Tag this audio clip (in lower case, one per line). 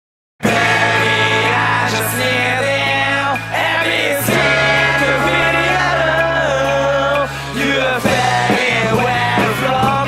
music
independent music